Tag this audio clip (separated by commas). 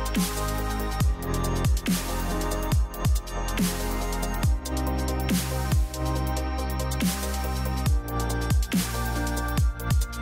Music